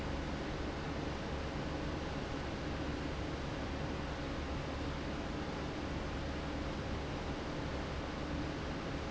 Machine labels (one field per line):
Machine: fan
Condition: abnormal